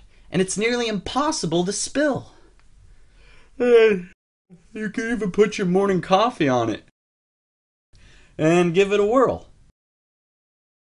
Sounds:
speech

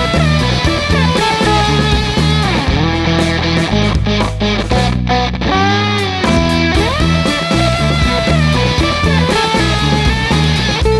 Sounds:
bass guitar
music

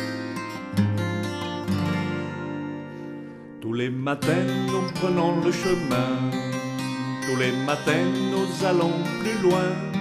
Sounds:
music

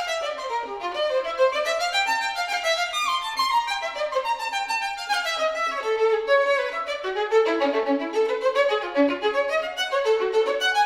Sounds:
fiddle
music
musical instrument

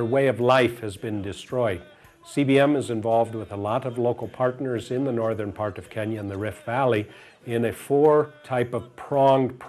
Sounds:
speech
music

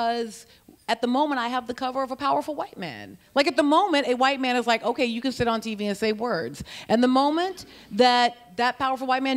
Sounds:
speech

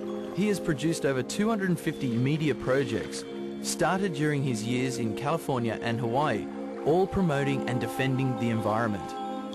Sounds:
vehicle
boat
music
speech

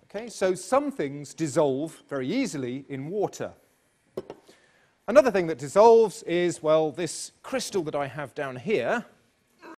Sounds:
speech

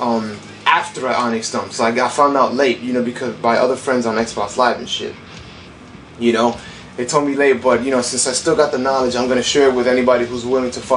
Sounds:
music
speech

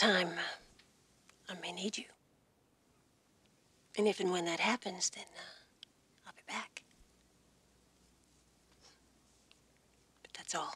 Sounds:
whispering
people whispering

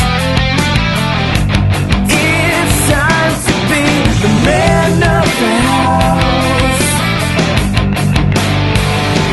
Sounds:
music

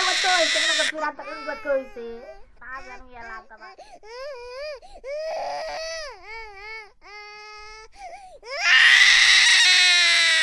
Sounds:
speech

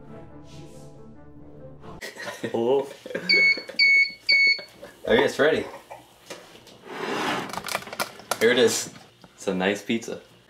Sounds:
music
speech
inside a small room

